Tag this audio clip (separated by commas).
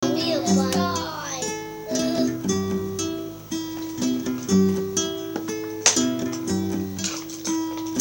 Human voice, Musical instrument, Plucked string instrument, Music, Guitar, Acoustic guitar